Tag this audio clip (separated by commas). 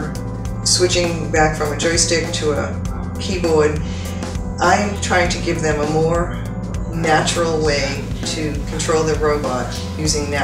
Music, Speech